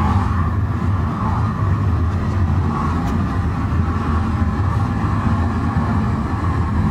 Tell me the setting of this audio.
car